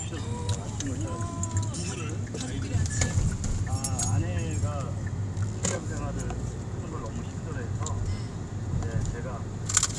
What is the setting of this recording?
car